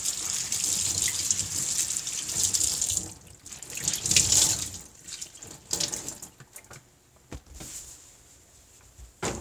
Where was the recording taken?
in a kitchen